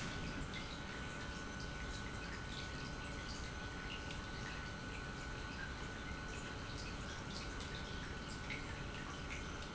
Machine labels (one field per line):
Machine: pump